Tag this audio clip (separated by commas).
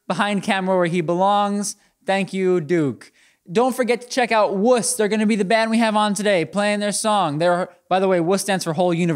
Speech